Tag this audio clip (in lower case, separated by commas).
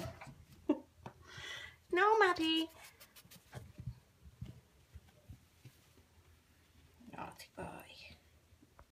speech